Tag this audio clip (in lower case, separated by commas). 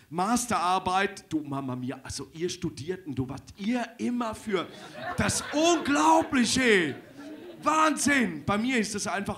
speech